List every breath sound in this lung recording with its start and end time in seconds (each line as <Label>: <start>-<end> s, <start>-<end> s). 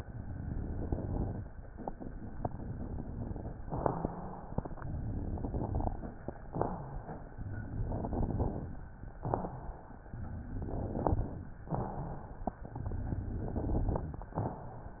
Inhalation: 0.00-1.46 s, 4.88-6.05 s, 7.46-8.77 s, 10.19-11.50 s, 12.75-14.21 s
Exhalation: 3.72-4.60 s, 6.53-7.32 s, 9.14-10.03 s, 11.72-12.60 s, 14.42-15.00 s
Crackles: 0.00-1.43 s, 4.84-6.04 s, 7.44-8.76 s, 10.19-11.51 s, 12.73-14.22 s